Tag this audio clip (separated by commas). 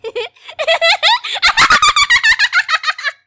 Laughter, Human voice